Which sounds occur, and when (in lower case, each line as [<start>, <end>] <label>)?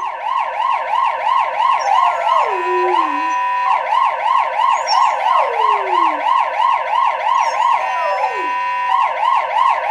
[0.00, 9.90] emergency vehicle
[0.00, 9.90] television
[1.64, 3.67] whimper (dog)
[4.72, 6.22] whimper (dog)
[7.26, 8.82] whimper (dog)